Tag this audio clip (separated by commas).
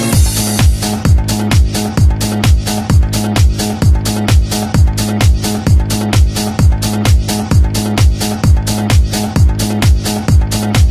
House music, Music